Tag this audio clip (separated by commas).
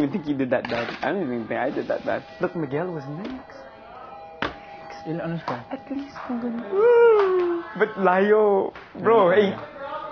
inside a large room or hall, Speech